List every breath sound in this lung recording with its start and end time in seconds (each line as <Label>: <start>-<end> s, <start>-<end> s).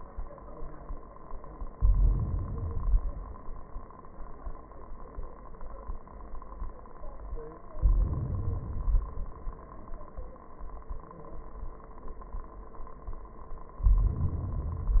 Inhalation: 1.70-2.67 s, 7.73-8.61 s, 13.84-15.00 s
Exhalation: 2.65-3.93 s, 8.61-9.49 s